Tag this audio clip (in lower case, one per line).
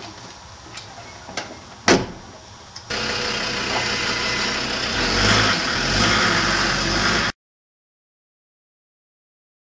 car
silence
vehicle